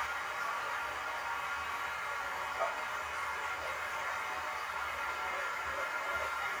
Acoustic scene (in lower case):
restroom